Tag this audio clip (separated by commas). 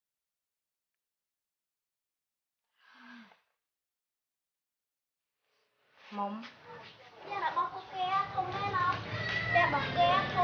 inside a small room, Speech, Silence